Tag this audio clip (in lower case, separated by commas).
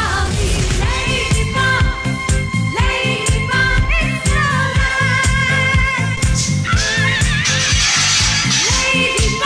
disco, music